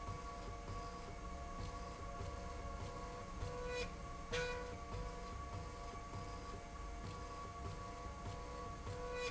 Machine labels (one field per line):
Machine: slide rail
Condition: normal